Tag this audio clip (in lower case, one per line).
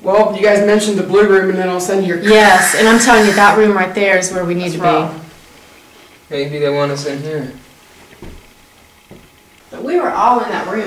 speech